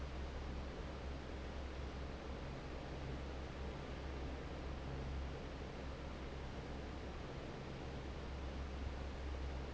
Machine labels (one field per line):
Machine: fan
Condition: normal